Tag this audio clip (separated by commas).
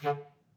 Musical instrument, Music, woodwind instrument